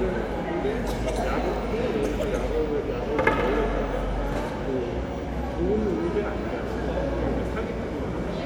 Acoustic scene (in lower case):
crowded indoor space